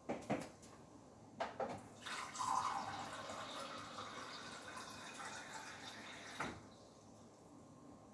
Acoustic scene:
kitchen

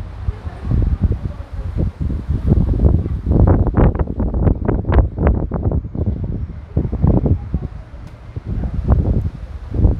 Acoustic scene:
residential area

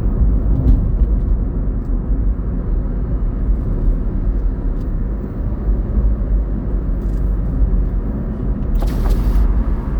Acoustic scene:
car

